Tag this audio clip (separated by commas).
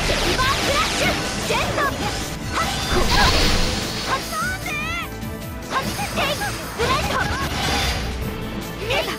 Music, Speech